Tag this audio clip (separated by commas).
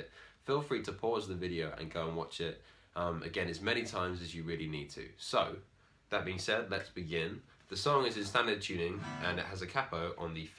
Guitar, Musical instrument, Speech, Music